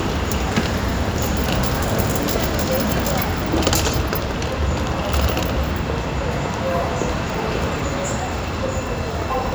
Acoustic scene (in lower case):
subway station